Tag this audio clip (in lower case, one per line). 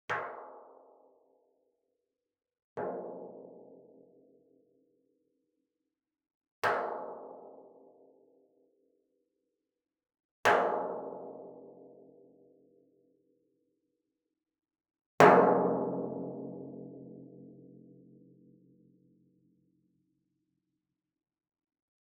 music
musical instrument
percussion
drum